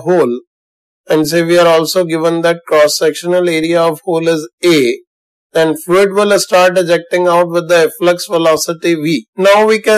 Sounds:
Speech

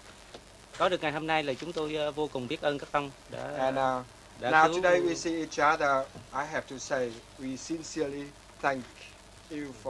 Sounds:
Speech

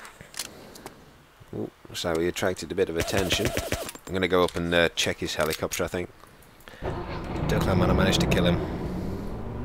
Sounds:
Vehicle

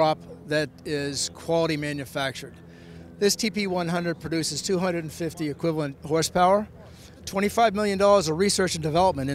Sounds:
Speech

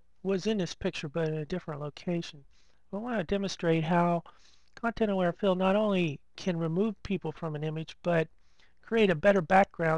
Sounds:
Speech

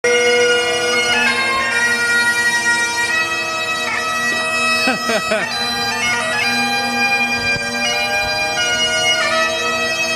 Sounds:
playing bagpipes

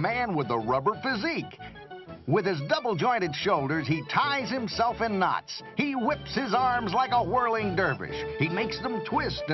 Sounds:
Music, Speech

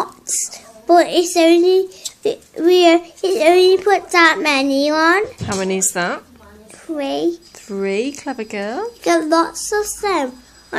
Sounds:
Conversation, Child speech, Female speech, Speech

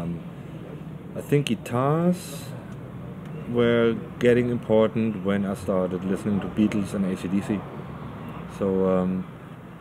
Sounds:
Speech

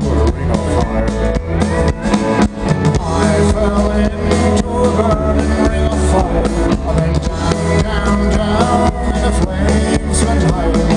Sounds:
Music

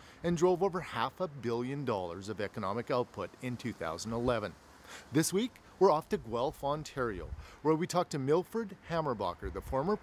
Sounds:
Speech

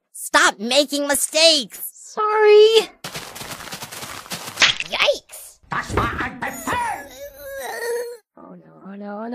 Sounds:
Speech, outside, rural or natural

